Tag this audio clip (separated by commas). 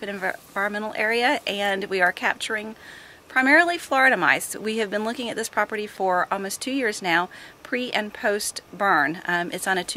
Speech